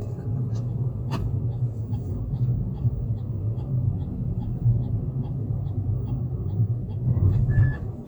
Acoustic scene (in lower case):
car